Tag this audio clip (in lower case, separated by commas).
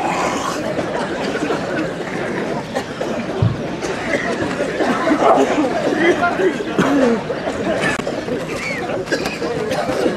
outside, urban or man-made, speech, chatter